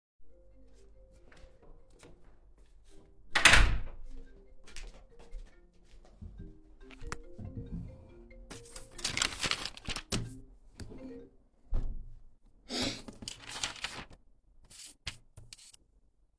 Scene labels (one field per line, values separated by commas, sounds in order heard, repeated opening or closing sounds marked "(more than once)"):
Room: office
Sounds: phone ringing, door, footsteps